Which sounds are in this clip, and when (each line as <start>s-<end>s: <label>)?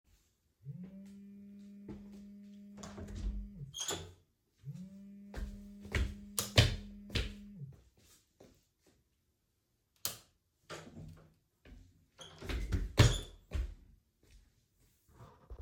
0.7s-8.0s: phone ringing
2.7s-4.5s: door
5.3s-7.8s: footsteps
6.3s-6.6s: light switch
9.9s-11.0s: light switch
10.6s-11.6s: door
12.2s-14.0s: footsteps
12.2s-13.8s: door